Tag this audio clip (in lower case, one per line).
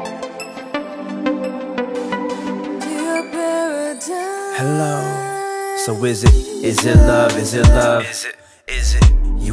music